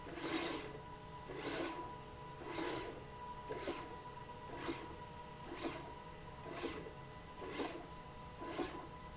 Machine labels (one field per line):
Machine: slide rail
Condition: abnormal